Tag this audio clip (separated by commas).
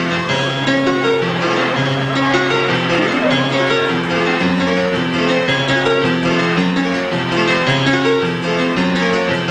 Music